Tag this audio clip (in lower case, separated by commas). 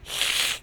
hiss